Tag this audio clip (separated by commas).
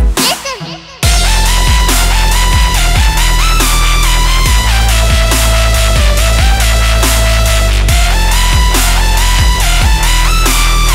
Music, Electronic music, Soul music, Dubstep